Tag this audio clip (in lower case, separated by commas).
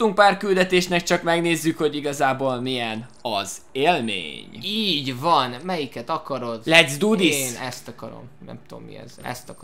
speech